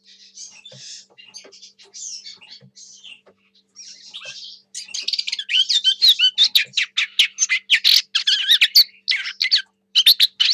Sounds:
warbler chirping

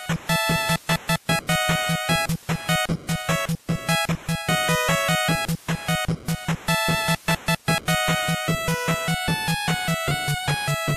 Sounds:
music, video game music

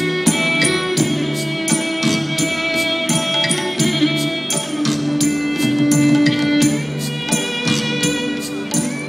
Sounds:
traditional music, music

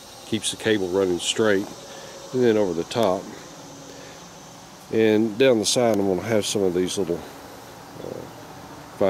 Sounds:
speech

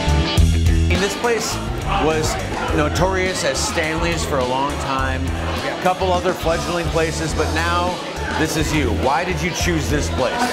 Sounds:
music, speech

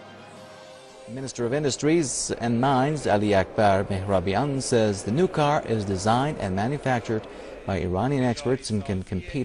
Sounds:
speech, music

